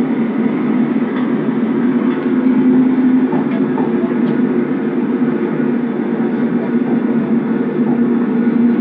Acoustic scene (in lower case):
subway train